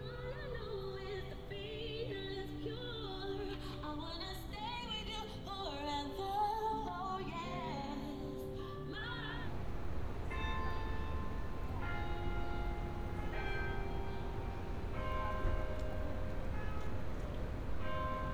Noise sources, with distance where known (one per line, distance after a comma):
music from an unclear source